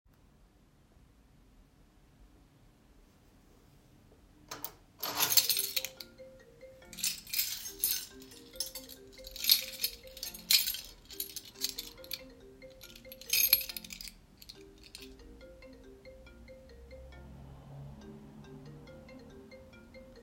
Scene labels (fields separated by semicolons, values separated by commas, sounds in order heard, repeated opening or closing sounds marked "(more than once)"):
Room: bedroom; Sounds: keys, phone ringing